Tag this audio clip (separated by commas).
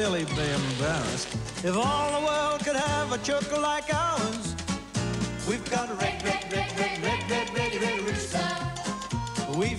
Music, Speech